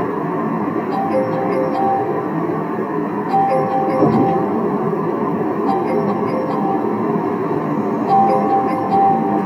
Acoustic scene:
car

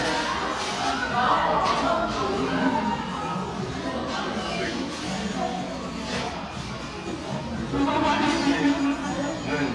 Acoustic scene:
crowded indoor space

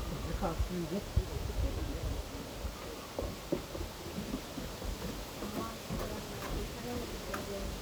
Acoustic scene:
park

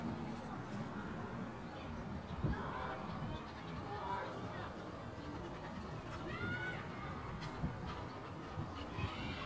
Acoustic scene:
residential area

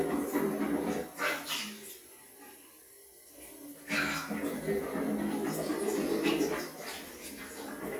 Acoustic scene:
restroom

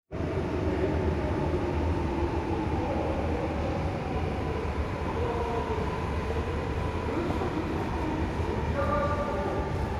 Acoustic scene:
subway station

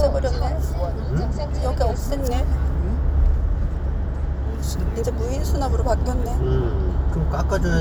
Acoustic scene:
car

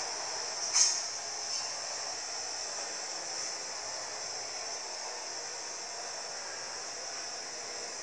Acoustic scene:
street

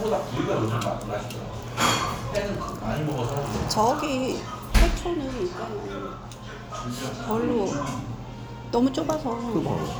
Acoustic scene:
restaurant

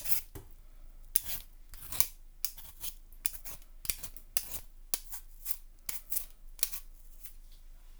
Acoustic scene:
kitchen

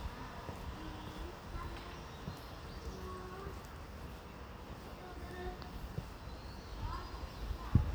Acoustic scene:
residential area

